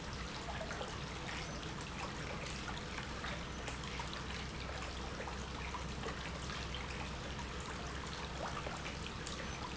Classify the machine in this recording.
pump